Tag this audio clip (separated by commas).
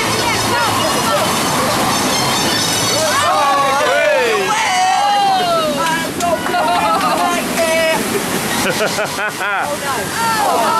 outside, rural or natural, Speech, Music